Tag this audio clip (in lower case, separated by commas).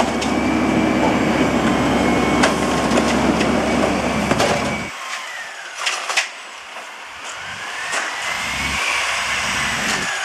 vehicle